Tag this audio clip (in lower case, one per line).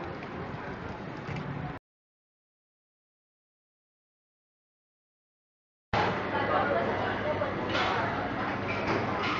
inside a public space
speech